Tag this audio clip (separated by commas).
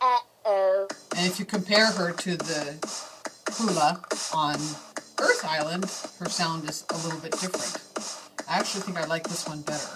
Speech, Music